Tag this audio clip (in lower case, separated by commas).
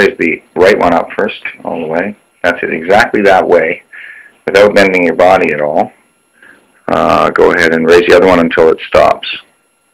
speech